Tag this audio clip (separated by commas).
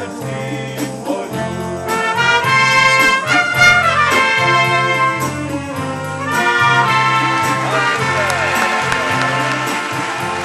Speech, Music, woodwind instrument, Orchestra